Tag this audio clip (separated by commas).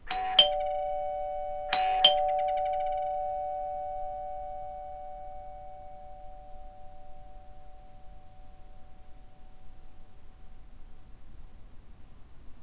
Alarm, Domestic sounds, Door, Doorbell